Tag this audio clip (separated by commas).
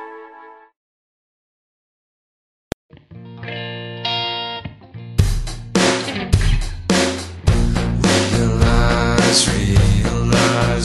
Music